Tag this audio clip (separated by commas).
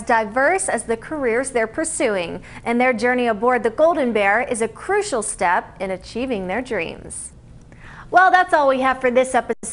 Speech